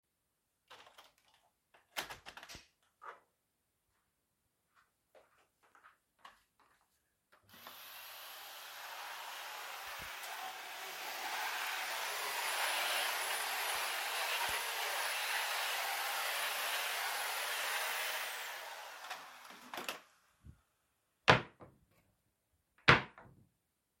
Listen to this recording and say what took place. I open the window to let fresh air in, then I go over to the vacuum cleaner, turn it on and start cleaning the room, after im done, I open the wardrobe to put my clothes in.